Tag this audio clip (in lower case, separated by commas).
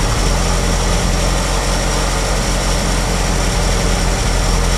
idling, engine